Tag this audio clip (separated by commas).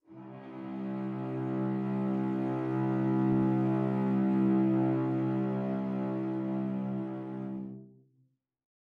Bowed string instrument, Music, Musical instrument